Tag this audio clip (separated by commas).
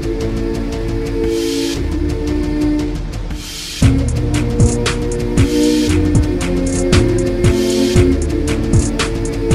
Music